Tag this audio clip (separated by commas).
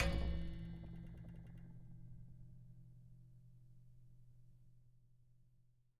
Percussion, Music, Musical instrument